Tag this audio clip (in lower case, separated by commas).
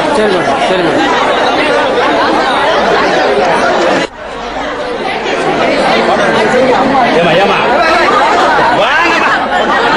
speech, inside a public space